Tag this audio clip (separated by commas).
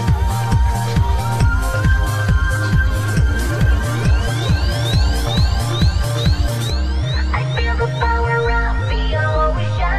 Trance music, Techno